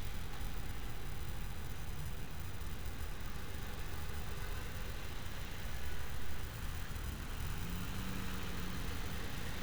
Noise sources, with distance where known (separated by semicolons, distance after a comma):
background noise